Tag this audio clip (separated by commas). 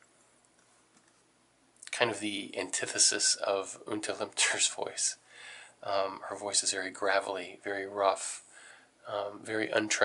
Speech, inside a small room